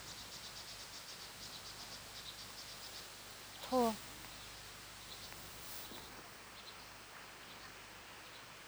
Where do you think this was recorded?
in a park